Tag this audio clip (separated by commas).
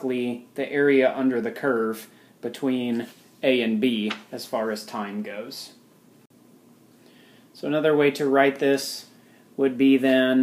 Speech